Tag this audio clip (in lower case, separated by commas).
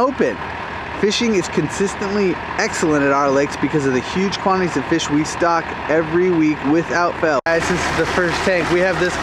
vehicle, speech, truck